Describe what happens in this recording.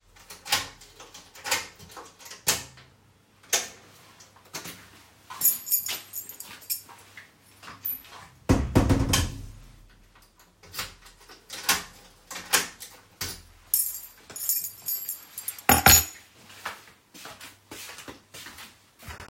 I rattled my keys to unlock the door. I opened the door walked inside with heavy footsteps and closed the door behind me.